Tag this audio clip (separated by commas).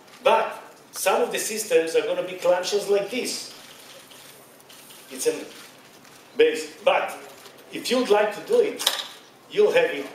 inside a large room or hall, Speech